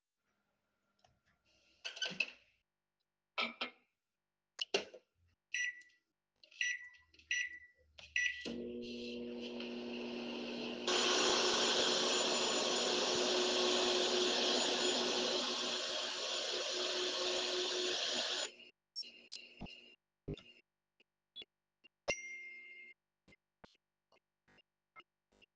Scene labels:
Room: kitchen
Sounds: microwave, vacuum cleaner, phone ringing

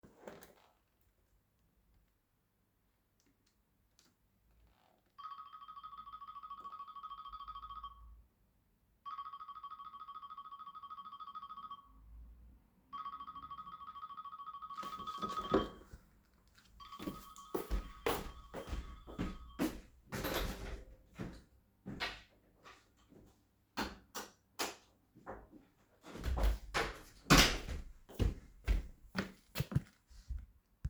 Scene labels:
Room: hallway, bedroom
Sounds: phone ringing, footsteps, door (more than once), light switch

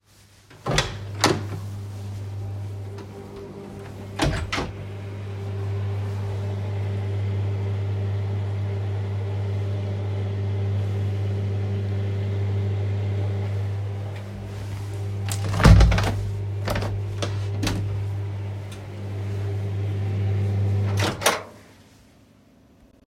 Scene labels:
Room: hallway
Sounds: door (more than once), microwave, window

